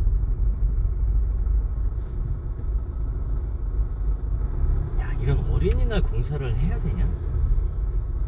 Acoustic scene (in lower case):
car